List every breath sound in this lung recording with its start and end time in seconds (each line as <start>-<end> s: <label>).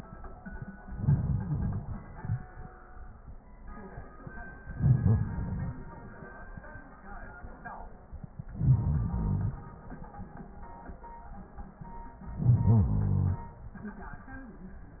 0.88-2.53 s: inhalation
4.59-5.99 s: inhalation
8.46-9.65 s: inhalation
12.30-13.49 s: inhalation